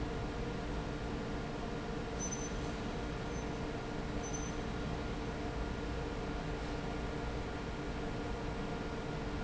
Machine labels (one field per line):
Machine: fan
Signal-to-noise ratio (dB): -6 dB